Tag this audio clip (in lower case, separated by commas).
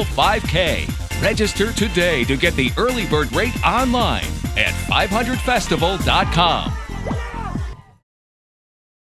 outside, urban or man-made, music, speech